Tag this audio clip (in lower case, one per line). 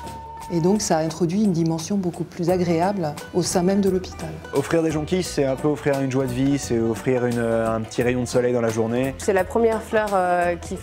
speech
music